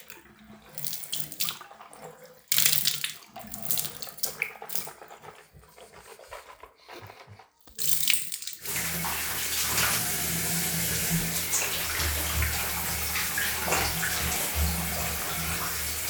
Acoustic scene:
restroom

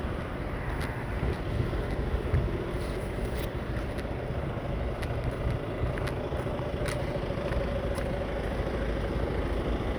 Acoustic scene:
residential area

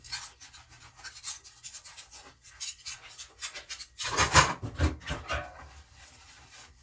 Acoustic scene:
kitchen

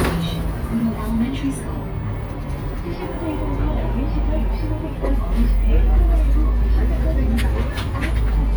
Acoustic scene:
bus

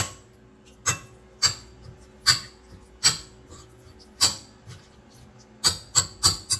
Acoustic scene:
kitchen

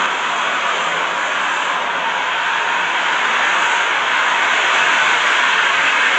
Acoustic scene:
street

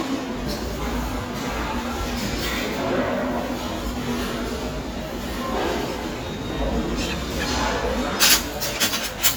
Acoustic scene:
restaurant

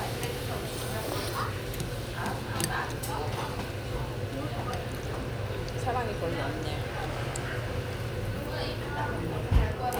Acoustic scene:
restaurant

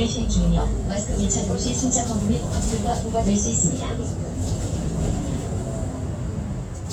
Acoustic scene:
bus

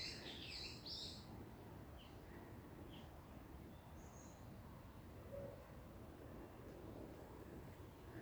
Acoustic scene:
park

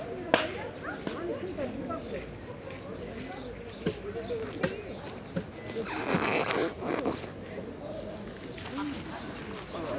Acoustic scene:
park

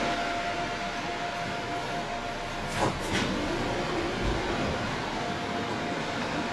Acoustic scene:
subway train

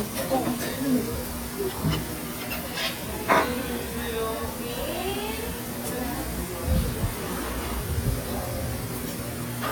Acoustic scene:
restaurant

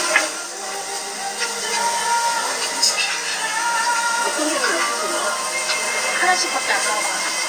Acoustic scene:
restaurant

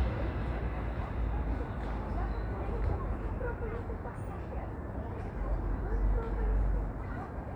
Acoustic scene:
residential area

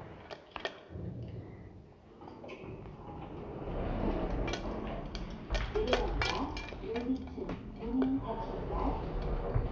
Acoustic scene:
elevator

